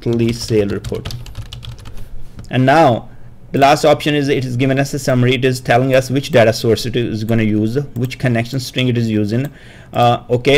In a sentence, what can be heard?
A person speaks while typing